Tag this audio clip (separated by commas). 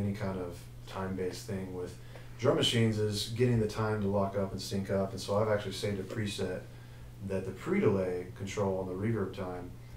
Speech